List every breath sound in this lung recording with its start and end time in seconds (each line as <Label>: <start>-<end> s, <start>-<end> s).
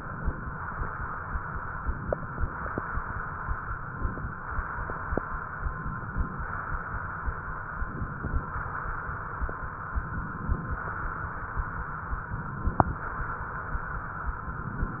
Inhalation: 0.00-0.64 s, 1.79-2.79 s, 3.66-4.51 s, 5.61-6.46 s, 7.80-8.58 s, 9.99-10.78 s, 12.25-13.03 s, 14.38-15.00 s